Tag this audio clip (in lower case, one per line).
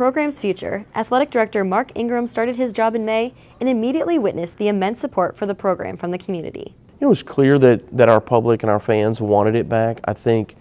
speech